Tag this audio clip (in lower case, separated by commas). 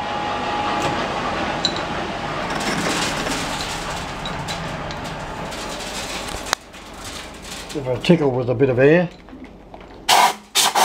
speech, power tool